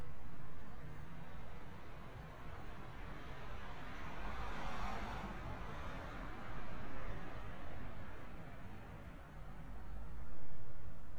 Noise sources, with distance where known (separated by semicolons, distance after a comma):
medium-sounding engine